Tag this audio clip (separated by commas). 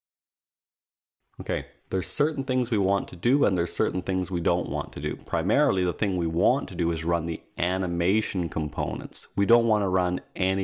Speech